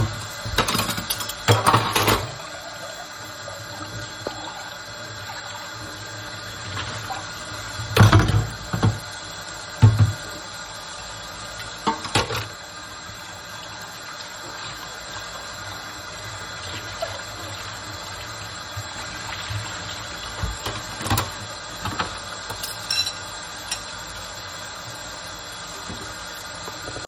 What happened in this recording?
I stood at the kitchen sink and turned on the tap. I began washing dishes, creating sounds of running water mixed with the clinking of cutlery and dishes.